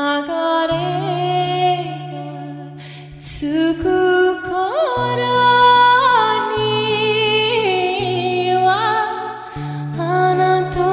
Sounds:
Music

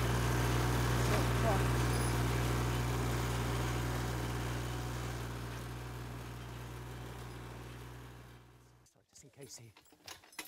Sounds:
Speech

